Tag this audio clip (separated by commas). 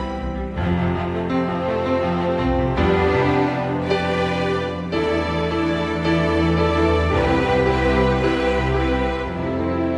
Music